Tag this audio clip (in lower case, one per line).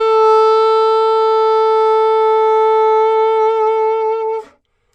musical instrument
music
woodwind instrument